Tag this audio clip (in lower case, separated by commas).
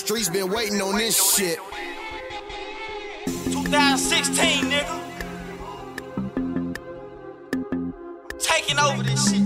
music